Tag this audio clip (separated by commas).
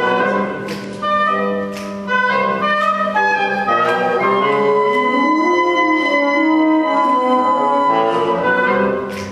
Music